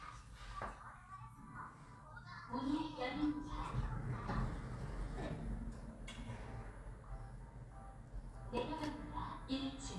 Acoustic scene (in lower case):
elevator